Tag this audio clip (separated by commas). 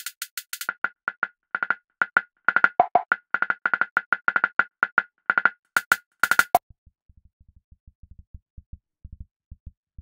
Electronic music, Music